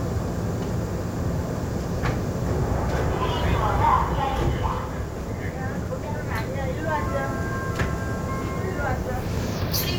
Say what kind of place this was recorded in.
subway train